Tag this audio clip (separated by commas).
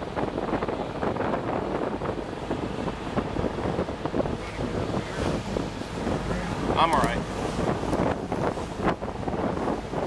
speedboat, Boat, Vehicle, Speech